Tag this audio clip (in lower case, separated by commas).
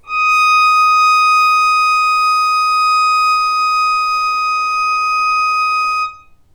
music, bowed string instrument, musical instrument